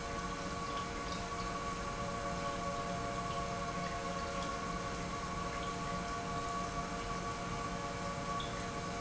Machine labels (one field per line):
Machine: pump